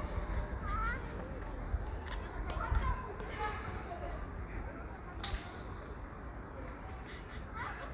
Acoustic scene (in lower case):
park